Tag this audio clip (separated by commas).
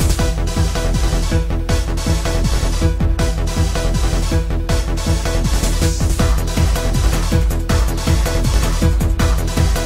Music